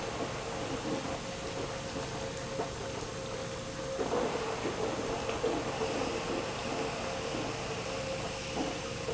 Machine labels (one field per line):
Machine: pump